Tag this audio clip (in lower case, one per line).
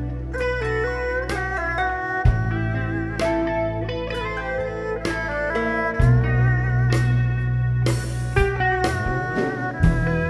music